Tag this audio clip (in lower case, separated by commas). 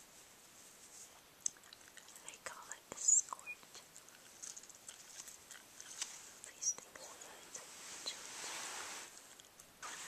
speech